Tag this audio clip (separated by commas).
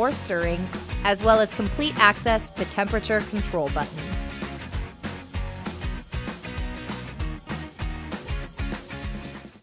Speech, Music